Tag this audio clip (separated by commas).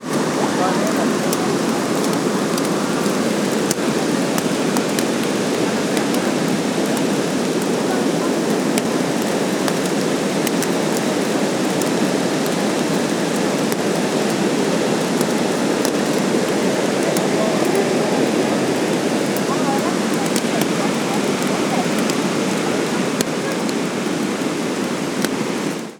Rain, Water